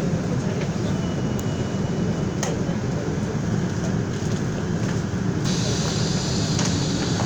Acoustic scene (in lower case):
subway train